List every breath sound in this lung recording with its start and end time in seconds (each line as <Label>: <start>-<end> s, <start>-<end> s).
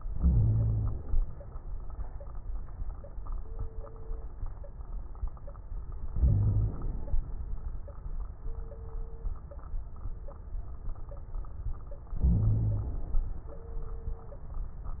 Inhalation: 0.12-1.16 s, 6.13-7.21 s, 12.19-13.27 s
Wheeze: 0.17-0.98 s, 6.20-6.75 s, 12.22-13.00 s